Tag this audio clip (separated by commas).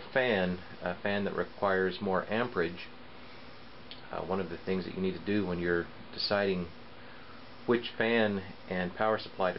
Speech